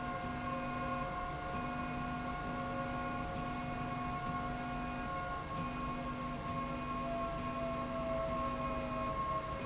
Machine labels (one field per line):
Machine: slide rail